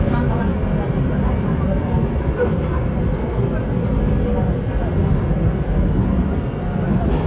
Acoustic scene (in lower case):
subway train